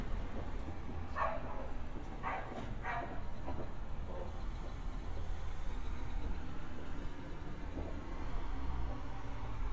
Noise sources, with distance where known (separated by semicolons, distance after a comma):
background noise